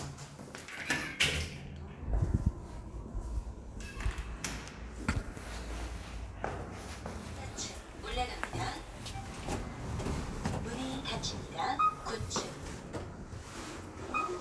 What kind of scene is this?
elevator